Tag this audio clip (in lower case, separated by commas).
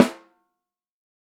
drum, musical instrument, music, percussion, snare drum